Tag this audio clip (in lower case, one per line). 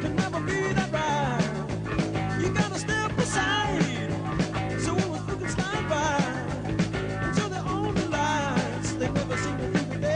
music